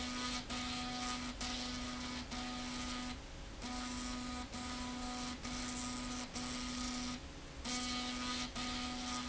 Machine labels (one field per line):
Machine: slide rail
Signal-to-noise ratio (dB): 6 dB